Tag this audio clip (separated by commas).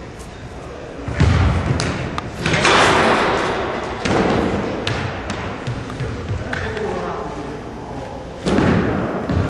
Slam, door slamming